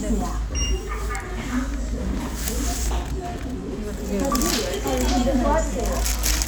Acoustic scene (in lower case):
crowded indoor space